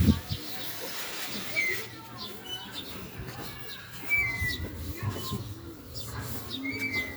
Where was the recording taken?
in a residential area